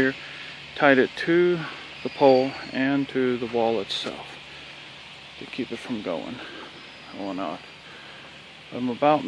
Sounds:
Speech

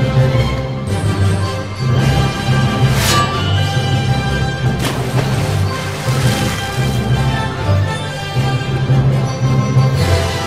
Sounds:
Music

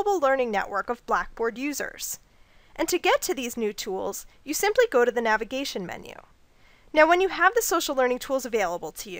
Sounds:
Speech

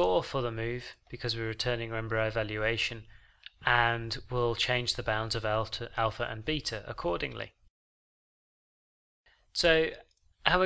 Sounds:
Speech

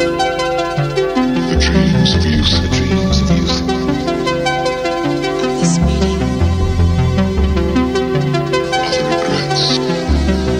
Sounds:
Music, Speech

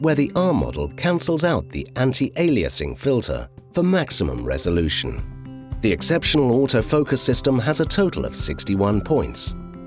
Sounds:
Speech, Music

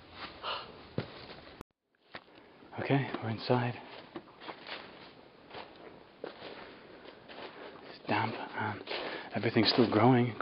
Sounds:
Speech

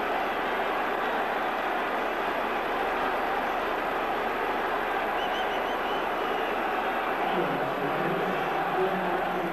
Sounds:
Speech

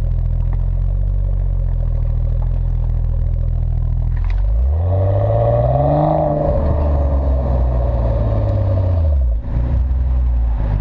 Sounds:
Crackle

